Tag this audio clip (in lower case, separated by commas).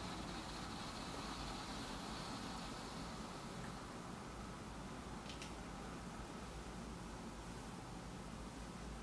silence